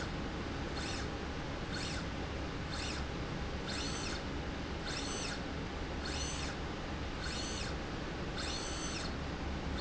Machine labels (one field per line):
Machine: slide rail